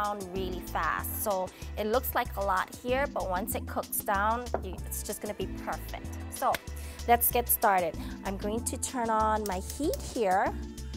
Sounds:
Speech, Music

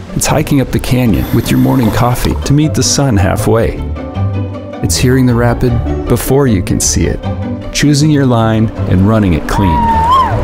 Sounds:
Music, Speech

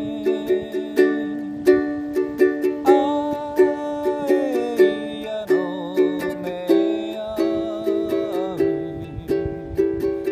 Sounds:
Music, Ukulele

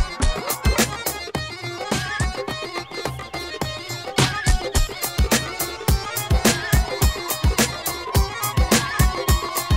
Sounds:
Music

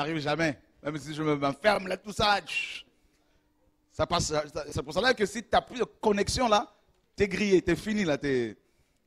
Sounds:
Speech

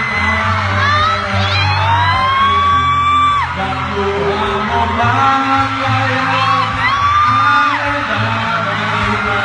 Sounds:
inside a large room or hall, Singing, Speech, Music, Yell

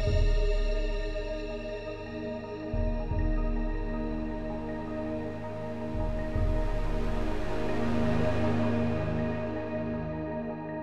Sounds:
Music

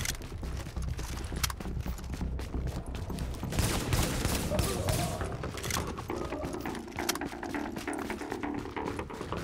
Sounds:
Music, outside, urban or man-made

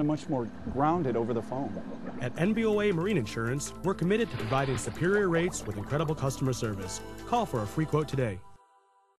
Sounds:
Music, Speech, Water

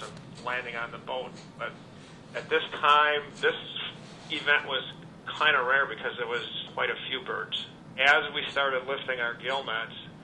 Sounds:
Speech

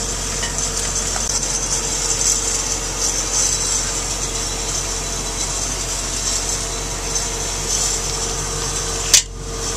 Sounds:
Tools

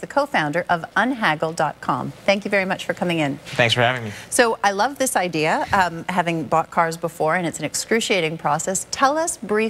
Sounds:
Speech

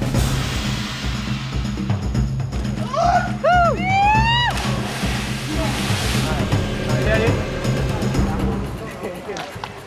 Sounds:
Speech, Music

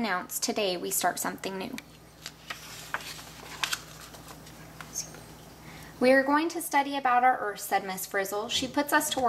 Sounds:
Speech

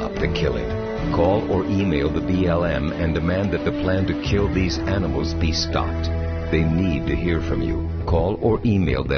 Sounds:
Speech, Music

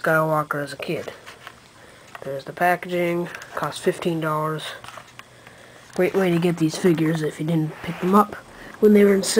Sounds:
inside a small room, Speech

